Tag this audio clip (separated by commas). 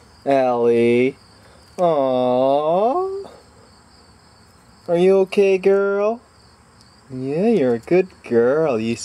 Speech